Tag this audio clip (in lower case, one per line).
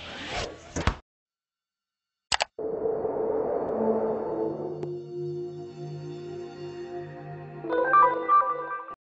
music